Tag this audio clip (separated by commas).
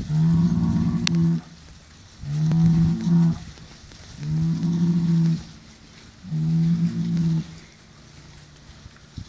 bull bellowing